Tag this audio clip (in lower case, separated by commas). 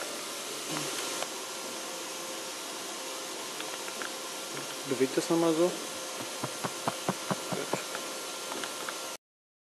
speech